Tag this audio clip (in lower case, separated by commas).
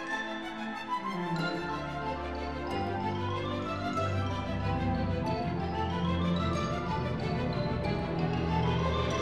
music